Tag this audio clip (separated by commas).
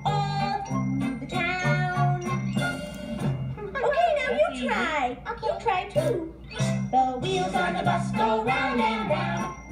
Speech, Music